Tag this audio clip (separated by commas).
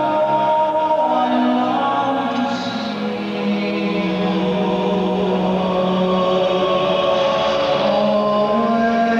Music